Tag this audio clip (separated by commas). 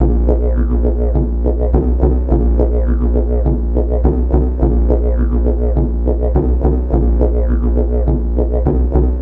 Musical instrument, Music